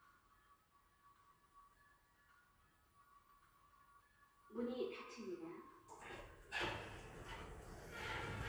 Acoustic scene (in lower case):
elevator